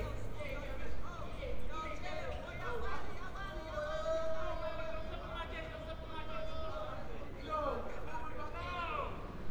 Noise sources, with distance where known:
person or small group shouting, near

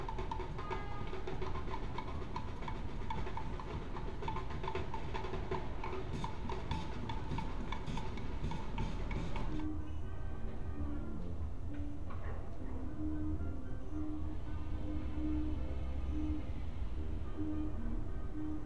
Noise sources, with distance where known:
music from a fixed source

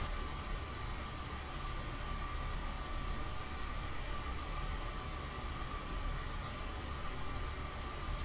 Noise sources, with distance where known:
engine of unclear size

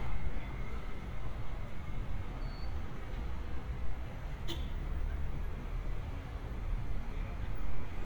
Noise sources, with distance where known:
engine of unclear size, near

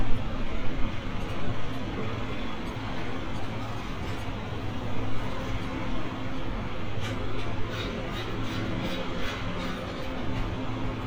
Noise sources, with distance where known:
engine of unclear size
unidentified impact machinery

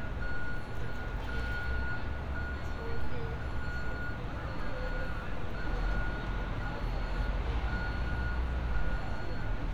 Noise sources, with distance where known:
reverse beeper, near
person or small group talking

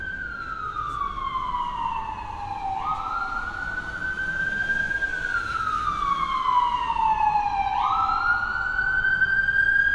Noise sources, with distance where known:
siren, near

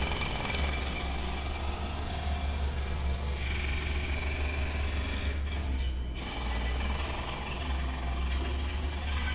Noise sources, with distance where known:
unidentified impact machinery, near

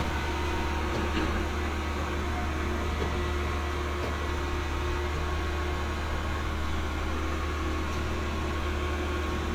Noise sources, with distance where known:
engine of unclear size, near

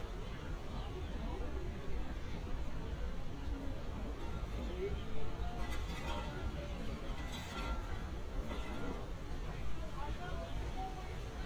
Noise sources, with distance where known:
unidentified impact machinery
person or small group talking, far

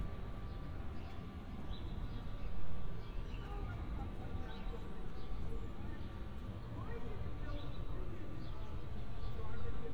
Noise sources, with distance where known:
person or small group talking, far

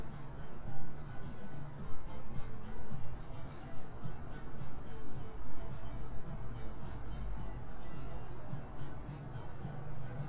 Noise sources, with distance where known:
music from an unclear source, far

